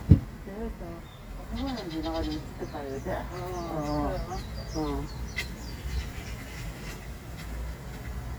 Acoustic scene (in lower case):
park